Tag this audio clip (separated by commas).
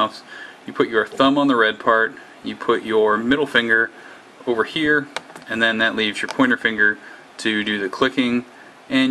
Speech